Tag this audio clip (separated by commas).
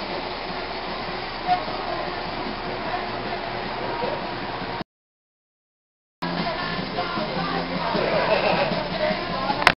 Music, Speech